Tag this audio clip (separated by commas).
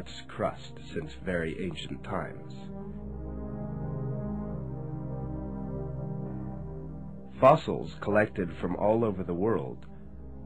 Speech, Music